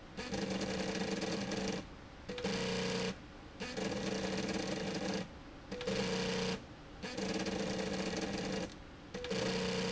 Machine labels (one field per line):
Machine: slide rail